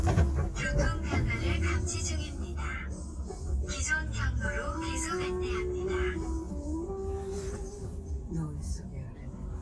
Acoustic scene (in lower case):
car